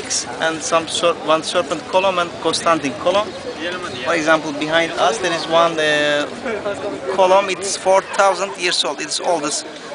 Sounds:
speech

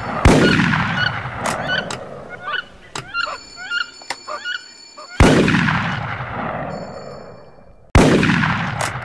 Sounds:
bird

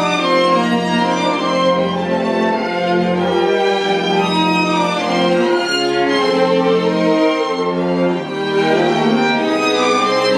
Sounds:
music

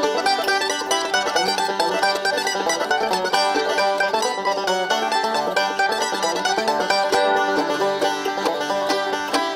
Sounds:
music, banjo, playing banjo, mandolin

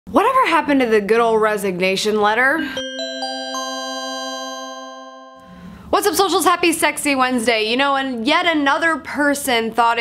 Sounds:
inside a small room, speech

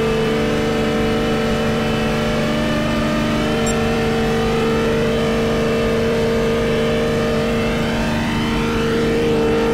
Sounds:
car

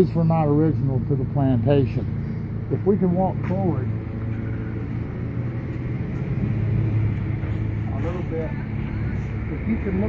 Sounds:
outside, urban or man-made, speech

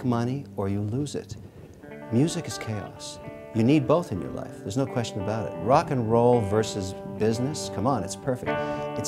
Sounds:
music, speech

